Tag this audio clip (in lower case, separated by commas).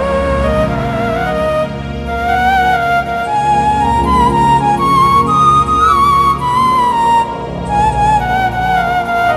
music